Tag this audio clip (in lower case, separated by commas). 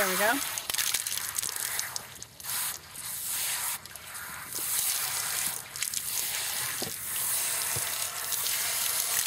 speech